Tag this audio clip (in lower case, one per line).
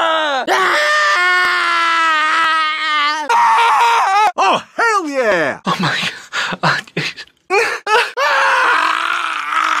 speech